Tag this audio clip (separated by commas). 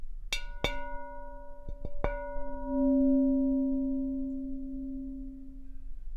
Glass